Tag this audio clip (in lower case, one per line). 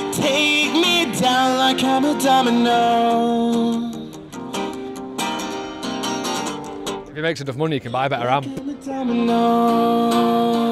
music
speech